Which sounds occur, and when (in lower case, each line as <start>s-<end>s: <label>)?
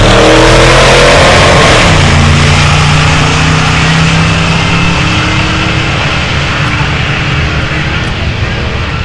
0.0s-9.0s: medium engine (mid frequency)
0.0s-9.0s: race car
0.0s-9.0s: wind